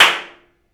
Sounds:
clapping, hands

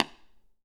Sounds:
tap

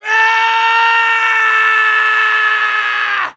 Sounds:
screaming, human voice

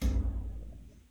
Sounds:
thud

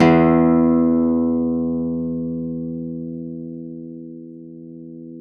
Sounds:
guitar, musical instrument, plucked string instrument, acoustic guitar, music

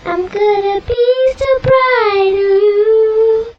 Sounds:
singing, human voice

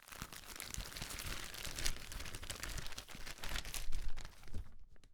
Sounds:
crackle

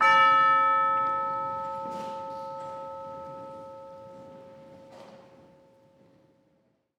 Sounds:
percussion, music, musical instrument

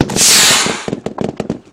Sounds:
explosion, gunshot

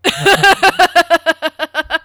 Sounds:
laughter, human voice

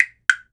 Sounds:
musical instrument, percussion, mechanisms, tick-tock, clock, music

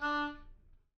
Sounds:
musical instrument, woodwind instrument, music

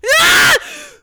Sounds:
human voice, screaming

